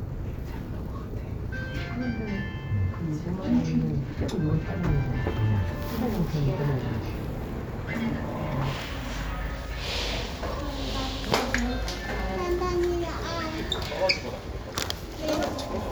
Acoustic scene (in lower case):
elevator